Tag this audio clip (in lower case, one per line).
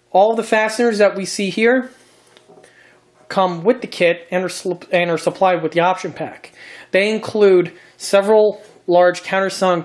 inside a small room
speech